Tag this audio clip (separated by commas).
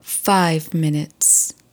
woman speaking, Speech, Human voice